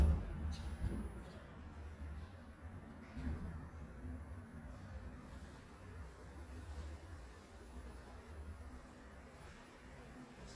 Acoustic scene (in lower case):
elevator